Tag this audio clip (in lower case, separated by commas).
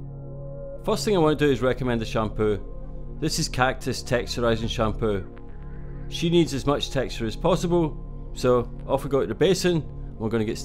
music, speech